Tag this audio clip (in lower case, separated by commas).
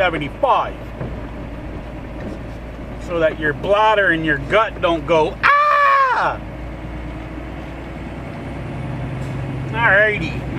vehicle, car, outside, urban or man-made, speech